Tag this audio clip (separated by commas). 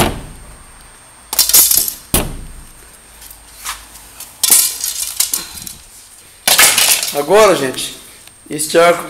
Speech